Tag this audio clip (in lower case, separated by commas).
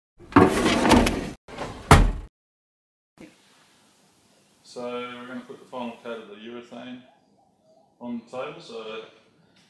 speech